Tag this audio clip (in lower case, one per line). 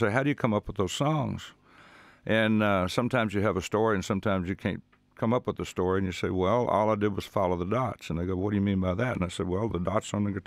speech